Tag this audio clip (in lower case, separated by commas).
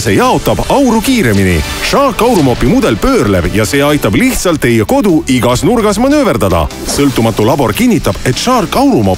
music, speech